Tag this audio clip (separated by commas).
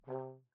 Brass instrument, Music, Musical instrument